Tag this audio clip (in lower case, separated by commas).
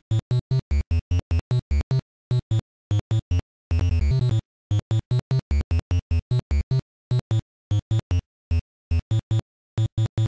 video game music, music